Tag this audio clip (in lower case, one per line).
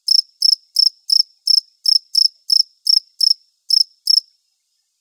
wild animals
insect
animal
cricket